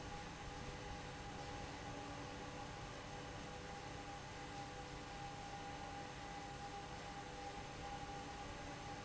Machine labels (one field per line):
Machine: fan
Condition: abnormal